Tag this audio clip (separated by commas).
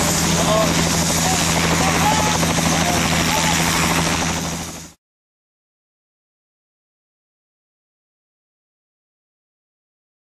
Speech, Helicopter